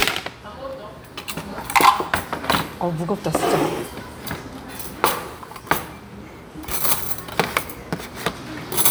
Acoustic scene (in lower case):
restaurant